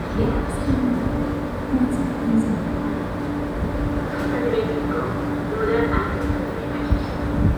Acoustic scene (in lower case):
subway station